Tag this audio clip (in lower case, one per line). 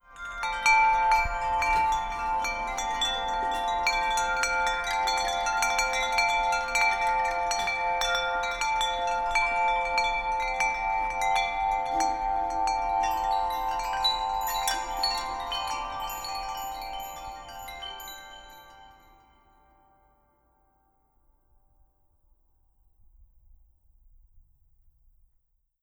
chime
wind chime
bell